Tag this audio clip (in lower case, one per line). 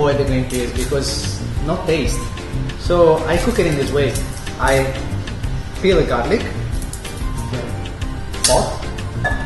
speech
music